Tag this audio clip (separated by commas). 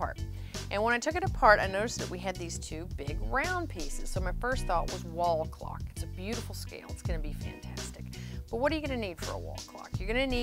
Music, Speech